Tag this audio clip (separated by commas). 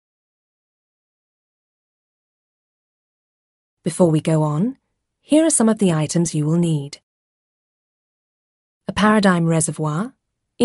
Speech